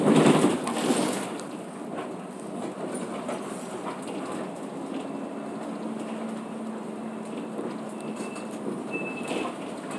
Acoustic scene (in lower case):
bus